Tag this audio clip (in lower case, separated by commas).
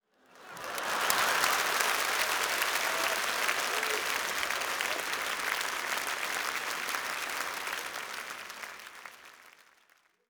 human group actions, crowd, applause